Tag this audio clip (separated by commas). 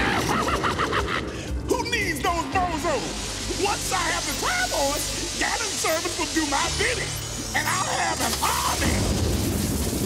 Music, Speech